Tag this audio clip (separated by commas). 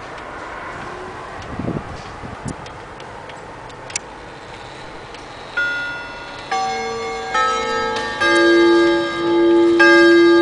Tick-tock